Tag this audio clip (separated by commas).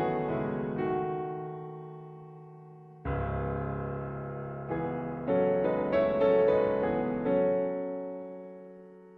Keyboard (musical), Music, Piano